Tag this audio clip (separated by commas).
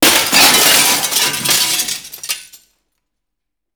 Shatter, Glass